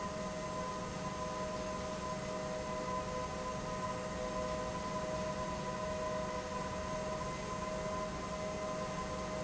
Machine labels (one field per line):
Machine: pump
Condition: normal